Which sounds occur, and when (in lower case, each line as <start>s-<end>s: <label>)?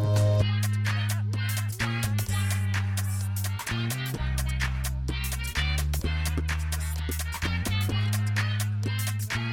0.0s-9.5s: music
0.9s-3.5s: male singing
5.1s-9.5s: male singing